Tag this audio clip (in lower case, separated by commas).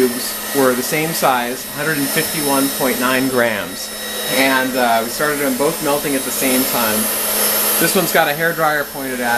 hair dryer